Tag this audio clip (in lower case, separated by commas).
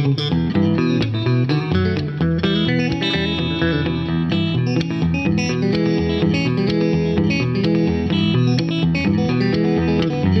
playing electric guitar, musical instrument, electric guitar, guitar, music